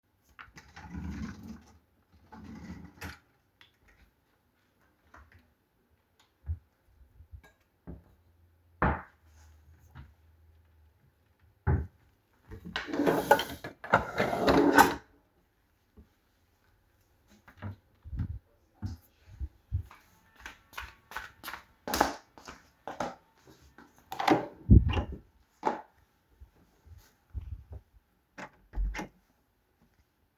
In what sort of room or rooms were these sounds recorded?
kitchen, bedroom